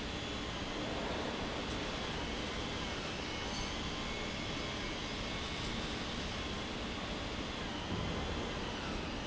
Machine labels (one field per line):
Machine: pump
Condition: abnormal